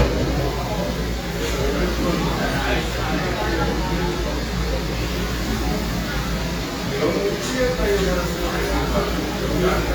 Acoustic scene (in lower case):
cafe